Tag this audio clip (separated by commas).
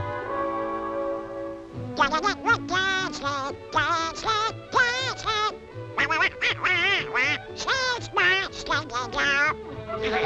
Quack, Music